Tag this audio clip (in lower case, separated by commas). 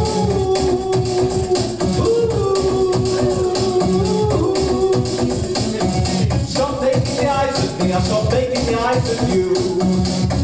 music